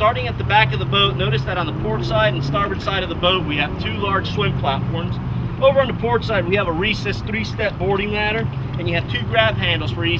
Male speaks while engines accelerate in distance